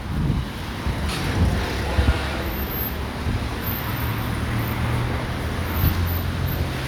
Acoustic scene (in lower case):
residential area